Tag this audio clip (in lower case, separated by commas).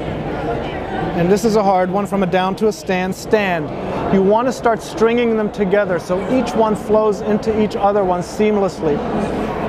speech